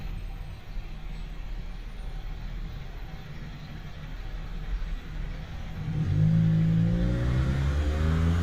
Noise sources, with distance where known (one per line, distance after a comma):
engine of unclear size, near